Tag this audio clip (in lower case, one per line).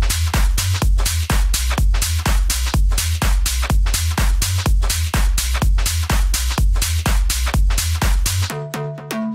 techno
music
electronic music